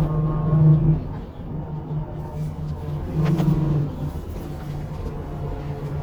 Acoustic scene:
bus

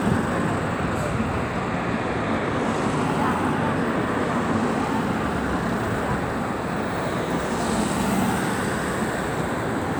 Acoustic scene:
street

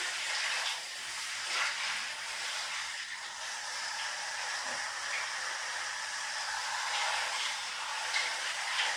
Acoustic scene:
restroom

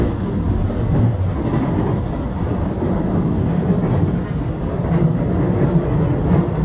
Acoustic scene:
subway train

